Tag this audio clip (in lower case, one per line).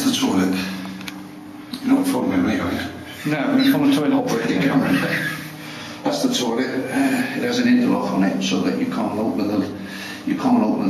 speech